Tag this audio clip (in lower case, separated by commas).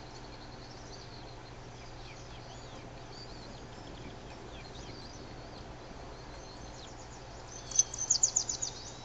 bird, outside, rural or natural, environmental noise